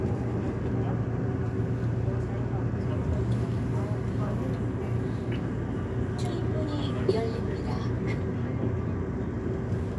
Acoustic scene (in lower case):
subway train